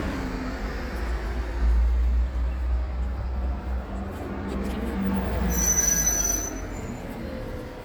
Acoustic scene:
street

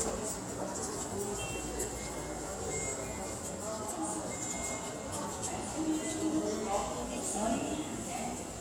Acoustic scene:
subway station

